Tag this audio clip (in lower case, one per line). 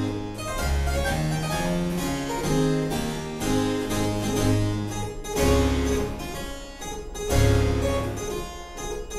music
harpsichord